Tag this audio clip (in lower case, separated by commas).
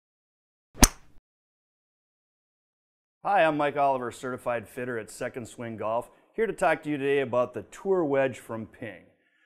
speech